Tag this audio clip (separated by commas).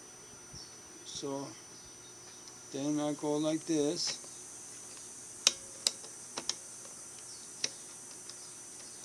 Speech